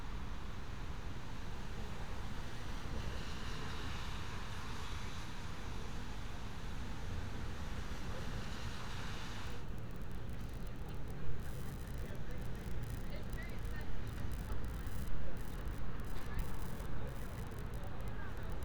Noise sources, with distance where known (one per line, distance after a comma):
background noise